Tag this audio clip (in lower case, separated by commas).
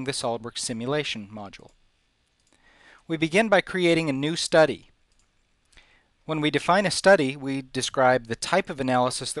speech